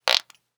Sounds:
fart

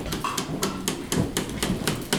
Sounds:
hammer, wood, tools

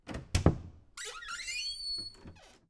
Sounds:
squeak

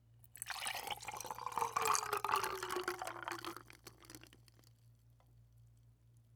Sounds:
liquid

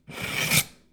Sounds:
home sounds, silverware

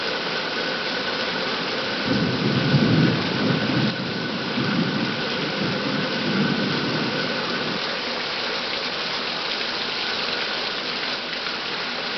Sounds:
thunder, water, thunderstorm, rain

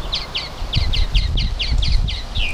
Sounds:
bird vocalization, animal, wild animals, bird

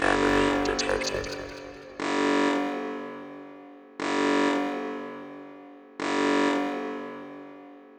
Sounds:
alarm

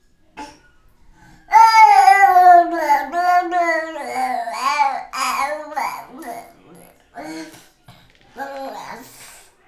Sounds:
speech, human voice

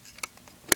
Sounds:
camera, mechanisms

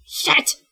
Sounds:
yell, shout, human voice

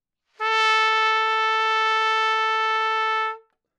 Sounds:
music, musical instrument, brass instrument, trumpet

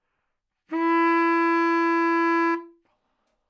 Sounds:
musical instrument, wind instrument, music

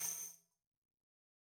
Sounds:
percussion, music, tambourine, musical instrument

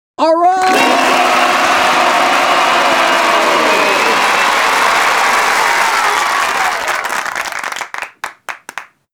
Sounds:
cheering, applause, human group actions, crowd

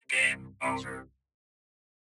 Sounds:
human voice, speech

